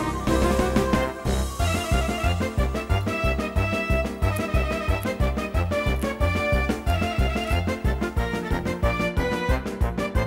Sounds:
Music

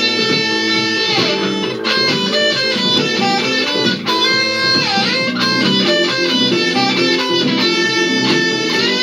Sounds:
Plucked string instrument, Guitar, Music, Musical instrument

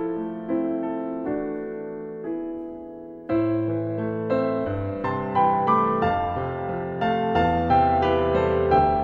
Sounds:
Keyboard (musical), Music

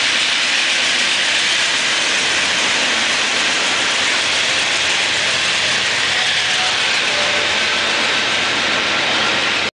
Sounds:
Engine, Vehicle

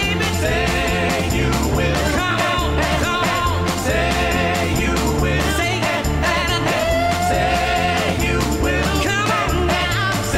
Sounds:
Music

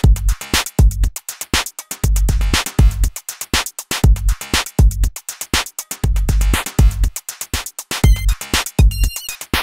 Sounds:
Drum machine, Music

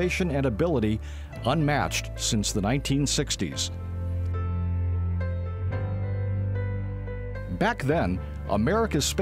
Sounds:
Music, Speech

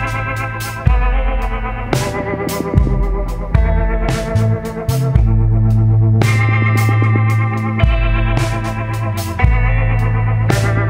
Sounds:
Music

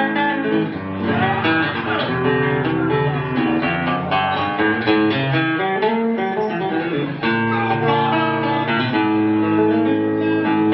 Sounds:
Guitar, Strum, Music, Electric guitar, Musical instrument, Plucked string instrument

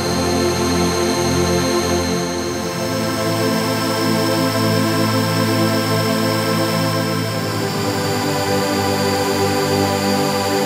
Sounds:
Background music, Music

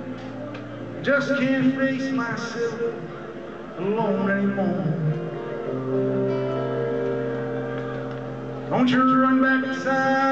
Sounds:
Music, Speech

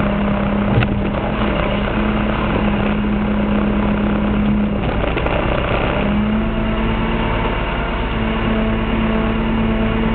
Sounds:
Vehicle

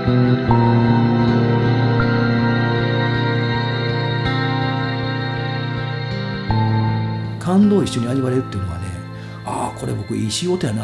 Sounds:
Music, Ambient music, Speech

